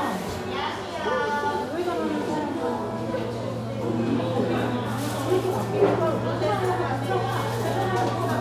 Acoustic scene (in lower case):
crowded indoor space